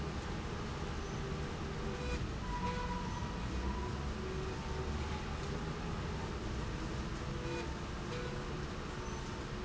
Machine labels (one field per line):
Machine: slide rail